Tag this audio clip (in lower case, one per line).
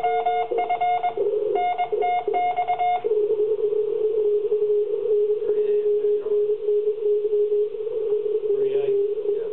speech